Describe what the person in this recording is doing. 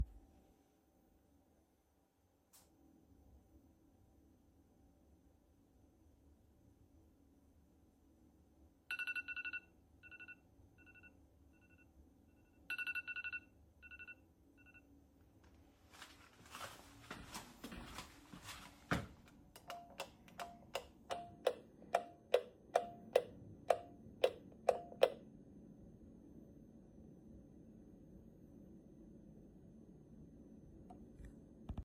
I held the phone while the default system alarm started ringing. I turned it off and then walked across the room to click the light switch several times.